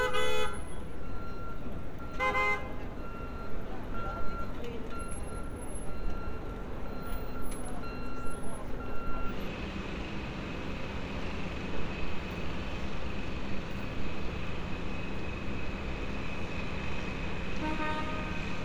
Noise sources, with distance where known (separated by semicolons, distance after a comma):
car horn, near